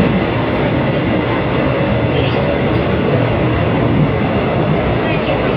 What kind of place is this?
subway train